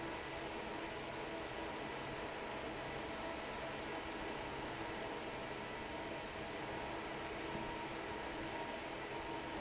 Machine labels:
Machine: fan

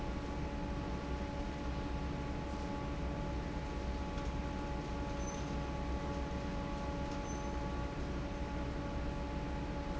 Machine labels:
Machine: fan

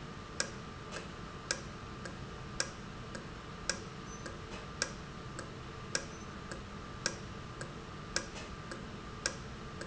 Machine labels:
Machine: valve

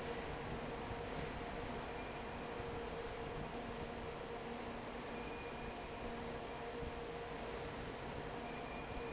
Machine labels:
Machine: fan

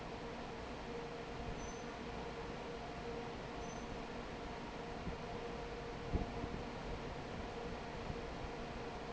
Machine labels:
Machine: fan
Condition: normal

